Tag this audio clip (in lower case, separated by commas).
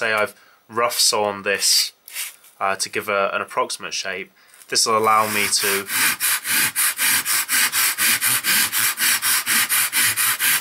speech